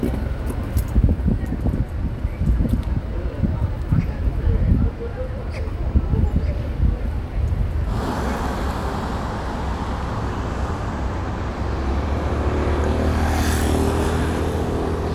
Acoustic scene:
street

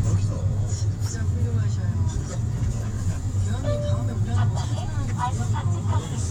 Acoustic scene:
car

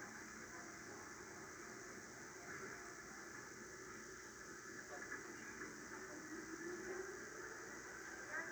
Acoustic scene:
subway train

